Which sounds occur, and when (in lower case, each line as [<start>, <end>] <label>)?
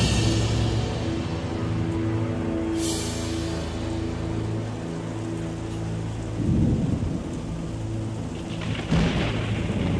[0.00, 9.95] music